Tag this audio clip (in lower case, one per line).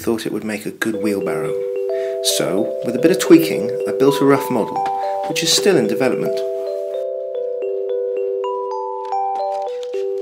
music
speech